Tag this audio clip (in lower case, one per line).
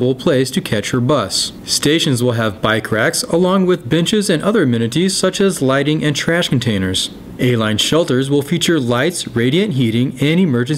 speech